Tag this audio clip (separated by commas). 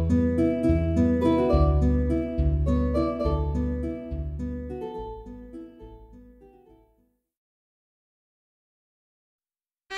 Violin, Music, Musical instrument